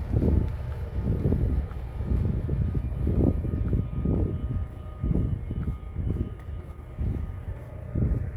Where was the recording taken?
in a residential area